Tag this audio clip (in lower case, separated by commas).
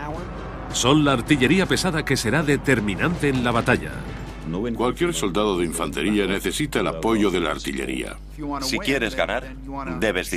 inside a small room, music, speech